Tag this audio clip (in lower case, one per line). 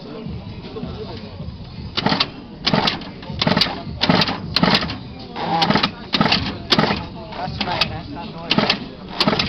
speech